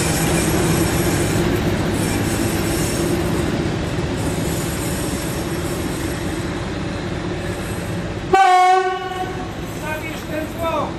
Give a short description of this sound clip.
The sound of a railroad car screeching on the tracks, and then honking